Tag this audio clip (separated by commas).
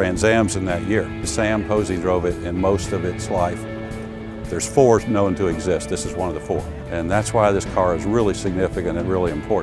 Music, Speech